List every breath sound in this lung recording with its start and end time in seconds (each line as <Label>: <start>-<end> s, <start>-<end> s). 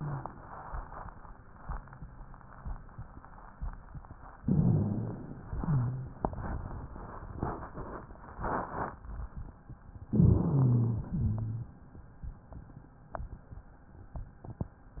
Inhalation: 4.40-5.47 s, 10.11-11.08 s
Exhalation: 5.50-6.24 s, 11.10-11.78 s
Wheeze: 4.40-5.47 s, 5.50-6.24 s, 10.11-11.08 s, 11.10-11.78 s